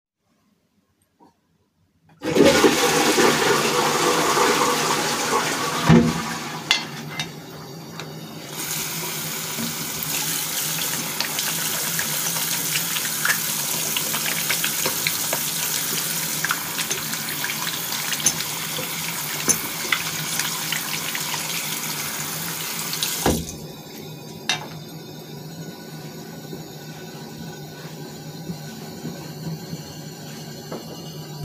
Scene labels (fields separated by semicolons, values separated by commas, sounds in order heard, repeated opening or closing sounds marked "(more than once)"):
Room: bathroom; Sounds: toilet flushing, running water